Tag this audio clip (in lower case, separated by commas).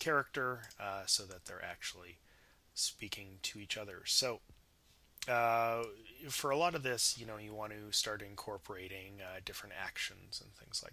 speech